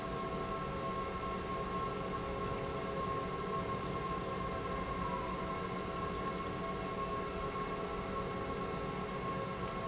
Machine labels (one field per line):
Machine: pump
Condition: normal